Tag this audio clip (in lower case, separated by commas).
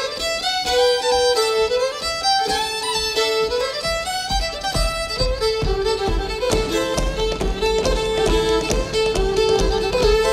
music, violin, musical instrument